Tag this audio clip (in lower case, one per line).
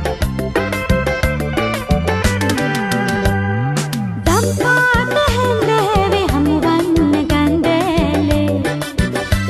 singing
music